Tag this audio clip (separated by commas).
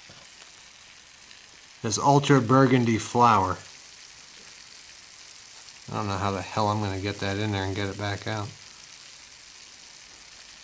inside a small room, Speech